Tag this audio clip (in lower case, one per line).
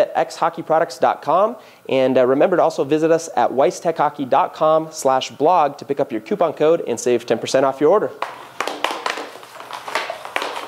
inside a small room
speech